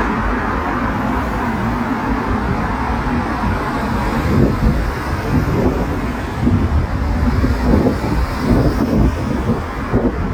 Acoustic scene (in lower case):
street